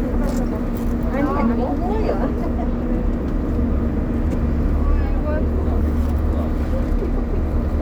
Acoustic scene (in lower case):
bus